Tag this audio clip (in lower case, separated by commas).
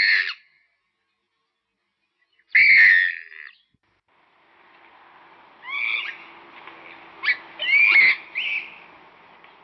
bird call, bird